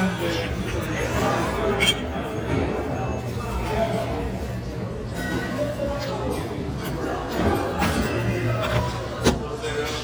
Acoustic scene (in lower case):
restaurant